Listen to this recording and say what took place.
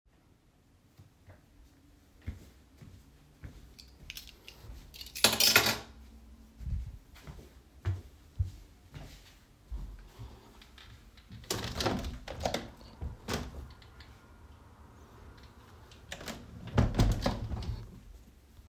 I walked to my desk and placed my keychain on the desk, then walked to the window, opened it and closed it again.